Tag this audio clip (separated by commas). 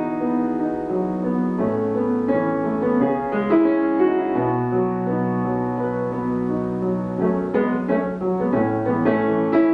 Music